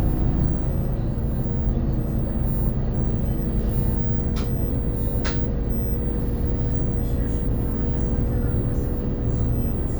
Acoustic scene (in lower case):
bus